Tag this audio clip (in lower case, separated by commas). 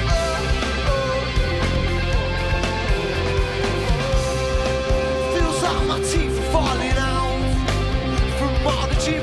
music